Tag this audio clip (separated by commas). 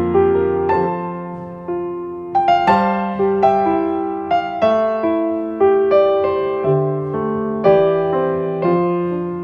Electric piano, Music